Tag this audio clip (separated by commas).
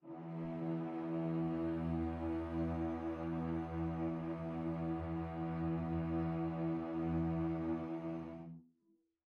Musical instrument, Music, Bowed string instrument